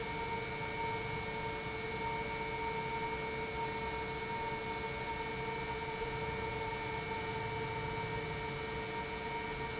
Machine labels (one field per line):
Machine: pump